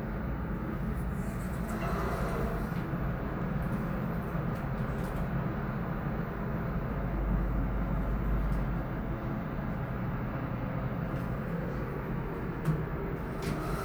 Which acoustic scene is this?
elevator